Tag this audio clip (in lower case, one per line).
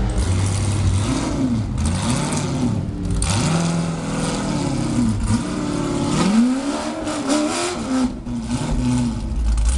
vehicle